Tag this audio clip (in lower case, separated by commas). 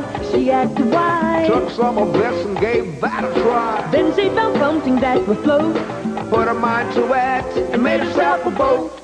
music